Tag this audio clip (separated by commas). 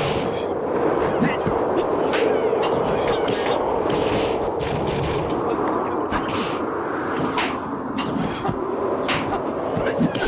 Whack